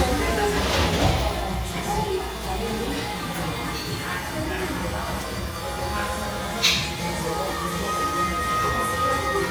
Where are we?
in a cafe